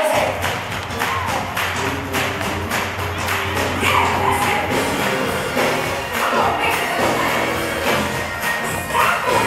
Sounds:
gospel music
singing
music

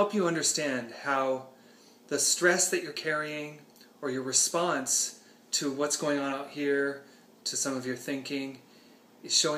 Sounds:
speech

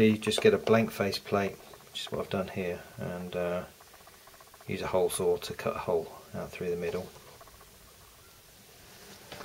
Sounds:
inside a small room
speech

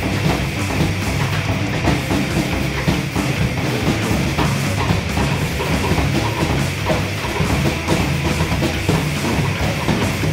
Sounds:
plucked string instrument
strum
music
musical instrument
guitar

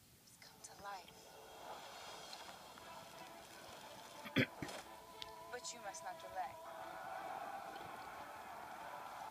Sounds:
speech
music

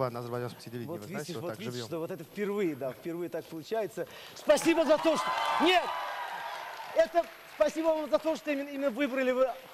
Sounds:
speech

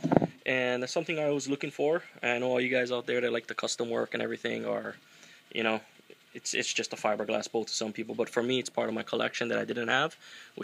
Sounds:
speech

